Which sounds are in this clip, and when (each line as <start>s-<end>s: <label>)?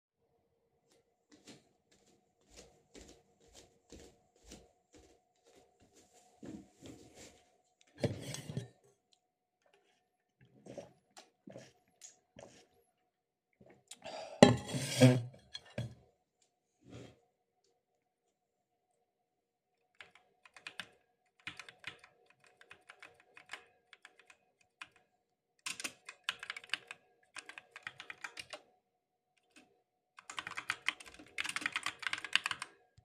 1.3s-6.4s: footsteps
19.9s-33.0s: keyboard typing